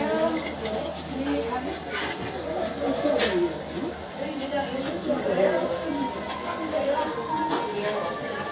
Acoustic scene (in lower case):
restaurant